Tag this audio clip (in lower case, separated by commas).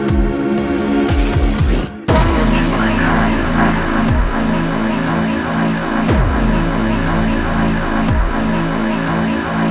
electronic music, techno, music